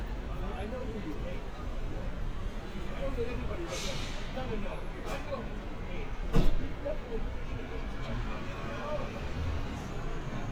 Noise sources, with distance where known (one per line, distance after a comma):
person or small group talking, near